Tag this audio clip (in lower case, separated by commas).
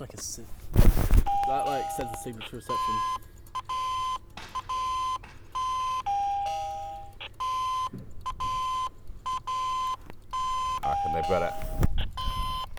domestic sounds, door, alarm, doorbell